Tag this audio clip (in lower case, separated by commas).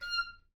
musical instrument, music, woodwind instrument